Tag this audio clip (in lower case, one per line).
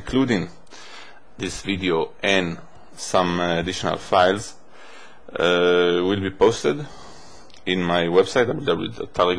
speech